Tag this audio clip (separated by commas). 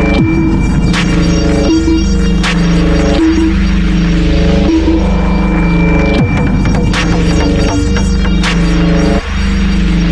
Ambient music, Electronic music, Music, Drum and bass